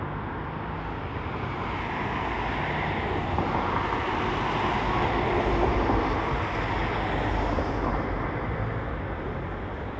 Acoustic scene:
street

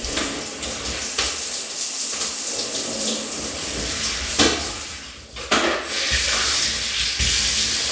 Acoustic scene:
restroom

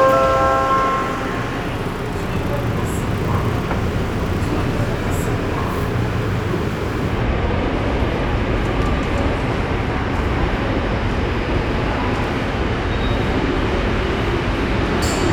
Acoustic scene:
subway station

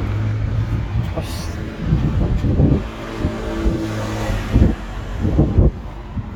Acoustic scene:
street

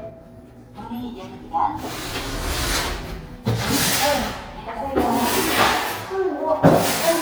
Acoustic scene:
elevator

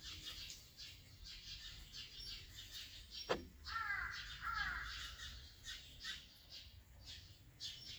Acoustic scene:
park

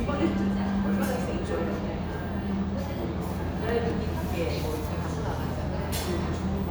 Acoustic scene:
cafe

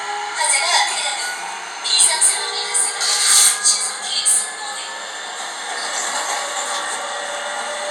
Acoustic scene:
subway train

